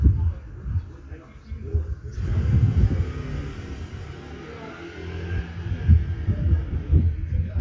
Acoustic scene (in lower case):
residential area